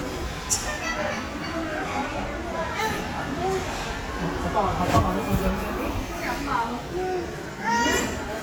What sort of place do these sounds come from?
crowded indoor space